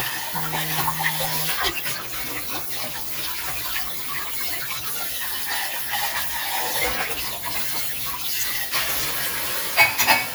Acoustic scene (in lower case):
kitchen